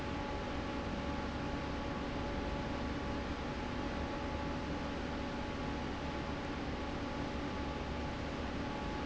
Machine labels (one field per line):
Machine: fan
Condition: normal